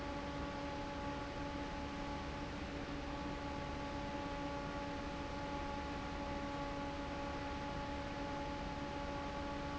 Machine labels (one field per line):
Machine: fan